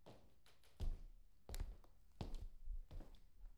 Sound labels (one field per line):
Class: footsteps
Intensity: low